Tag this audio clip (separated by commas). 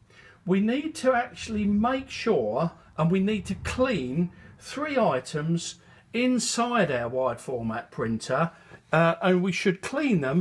Speech